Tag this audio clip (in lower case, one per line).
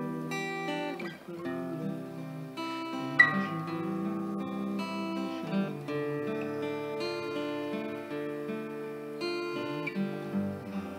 music